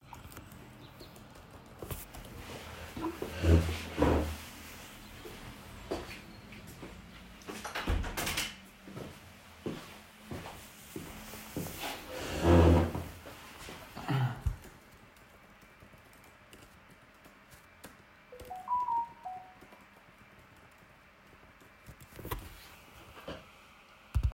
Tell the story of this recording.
I started typing on the keyboard, then I got up walked and closed the already open window. After sitting back down I kept on typing and a notification came.